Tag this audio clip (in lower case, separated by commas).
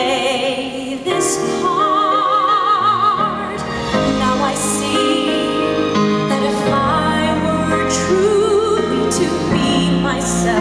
music, female singing